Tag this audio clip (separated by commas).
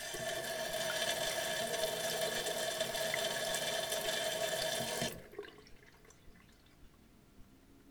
home sounds, Water tap